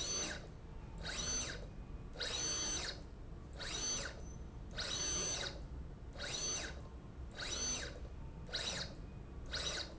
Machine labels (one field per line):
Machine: slide rail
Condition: abnormal